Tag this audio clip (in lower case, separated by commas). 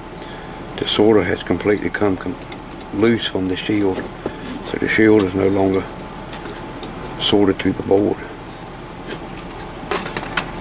speech, inside a small room